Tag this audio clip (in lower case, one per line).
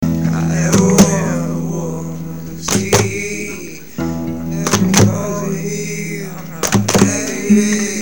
musical instrument
human voice
plucked string instrument
guitar
acoustic guitar
music